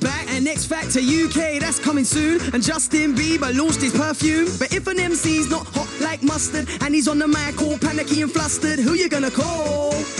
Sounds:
Music

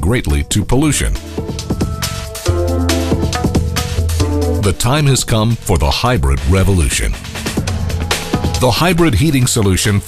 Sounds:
Speech, Music

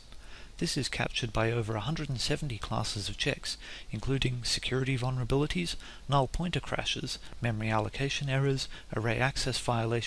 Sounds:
Speech

